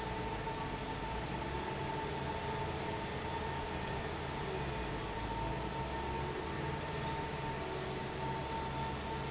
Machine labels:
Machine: fan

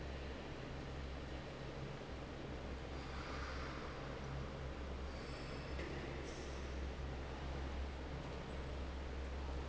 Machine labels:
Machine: fan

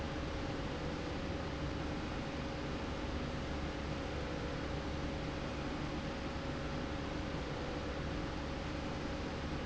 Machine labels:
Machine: slide rail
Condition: normal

